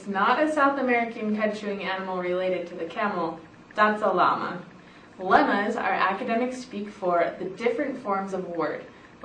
An adult female is speaking